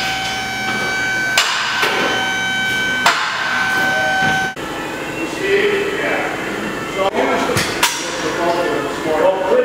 A drilling and hammering over speech